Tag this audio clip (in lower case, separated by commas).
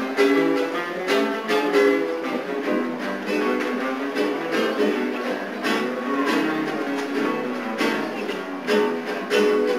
acoustic guitar, plucked string instrument, guitar, musical instrument, strum, music